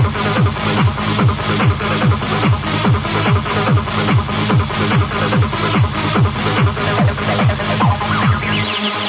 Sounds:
people shuffling

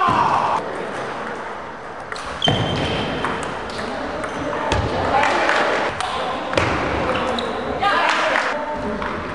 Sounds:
Speech, Ping

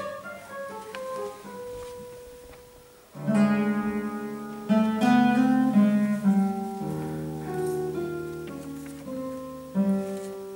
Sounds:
Guitar, Acoustic guitar, Music

